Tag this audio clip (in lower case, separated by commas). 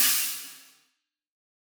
hi-hat, musical instrument, music, cymbal, percussion